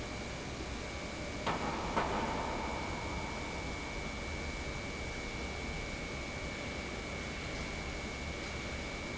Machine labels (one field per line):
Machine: pump